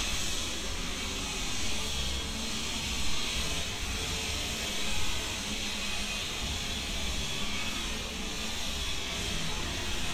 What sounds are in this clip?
unidentified powered saw